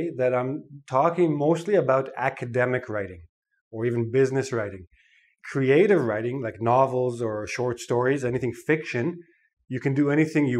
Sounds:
speech

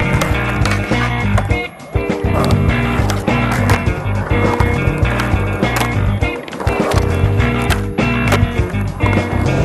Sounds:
skateboard
music

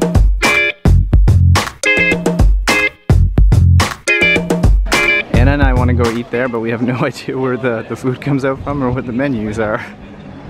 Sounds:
speech
music

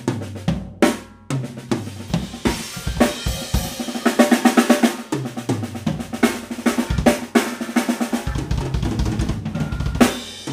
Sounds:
music

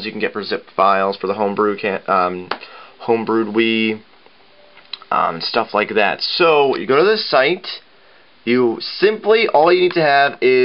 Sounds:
speech

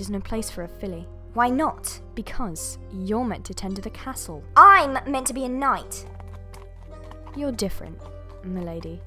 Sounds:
speech
music

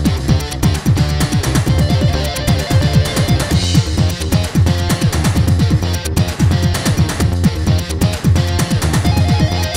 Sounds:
dance music
disco
music

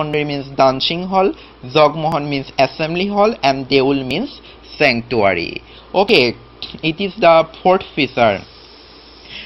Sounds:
speech

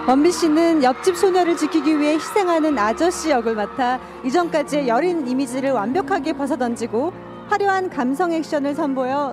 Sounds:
music
speech

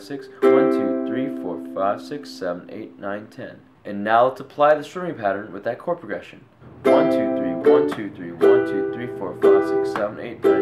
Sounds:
playing ukulele

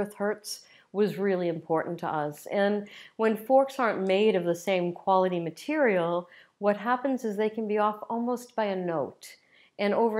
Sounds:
speech

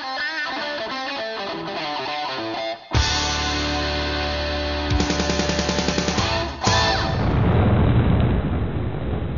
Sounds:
music

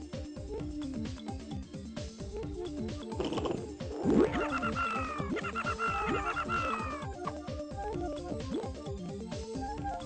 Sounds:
music

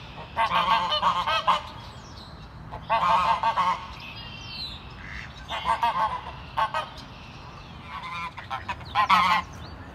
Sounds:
goose honking

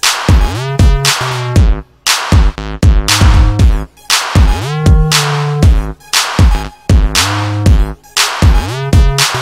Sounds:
music

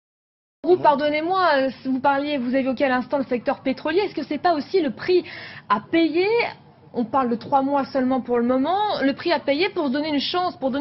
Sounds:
speech

